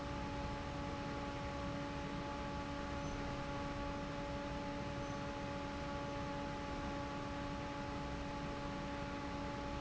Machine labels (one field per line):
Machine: fan